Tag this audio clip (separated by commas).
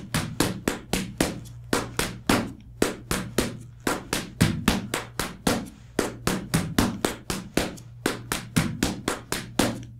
tap dancing